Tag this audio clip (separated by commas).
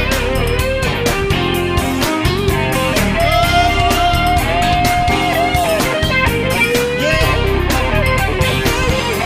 Music